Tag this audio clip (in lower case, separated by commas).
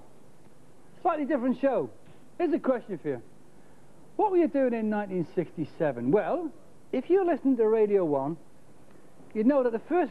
speech